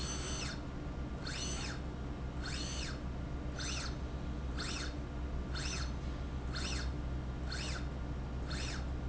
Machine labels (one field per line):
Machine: slide rail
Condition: normal